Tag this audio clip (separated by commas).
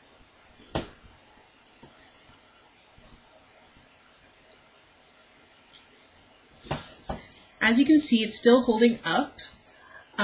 Speech